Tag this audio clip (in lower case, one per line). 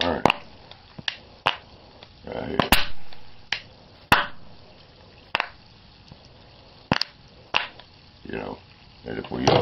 inside a small room
speech
boiling